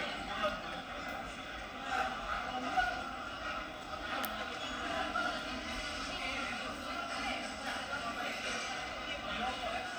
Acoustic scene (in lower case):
cafe